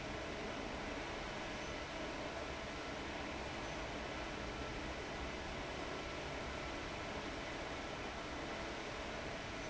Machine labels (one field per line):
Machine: fan